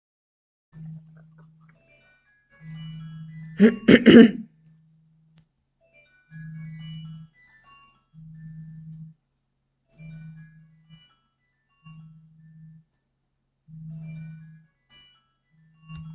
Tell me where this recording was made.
office